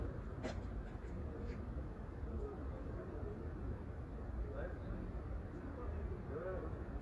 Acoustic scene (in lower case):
residential area